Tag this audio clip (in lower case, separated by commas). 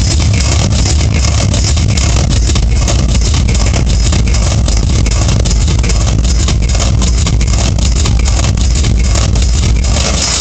techno, music